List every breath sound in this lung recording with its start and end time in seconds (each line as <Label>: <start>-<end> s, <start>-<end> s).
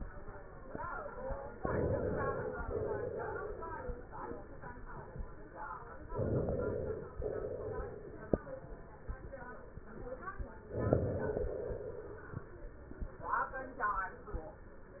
Inhalation: 1.57-2.61 s, 6.09-7.20 s, 10.68-11.42 s
Exhalation: 2.61-3.84 s, 7.20-8.38 s, 11.42-12.49 s